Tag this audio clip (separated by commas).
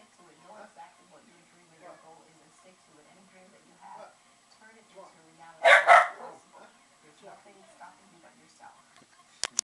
Dog, Animal, Domestic animals, Speech, Bow-wow